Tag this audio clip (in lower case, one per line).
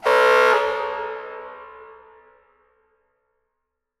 alarm